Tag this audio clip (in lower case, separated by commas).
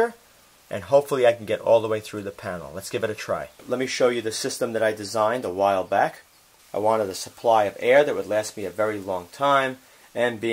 speech